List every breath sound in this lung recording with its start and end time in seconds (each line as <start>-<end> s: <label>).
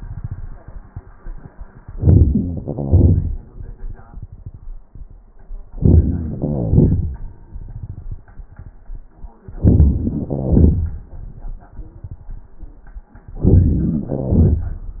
1.89-2.64 s: inhalation
2.63-4.84 s: exhalation
5.77-6.37 s: inhalation
6.36-8.55 s: exhalation
9.57-10.38 s: inhalation
10.32-11.71 s: exhalation
13.32-14.05 s: inhalation
14.07-15.00 s: exhalation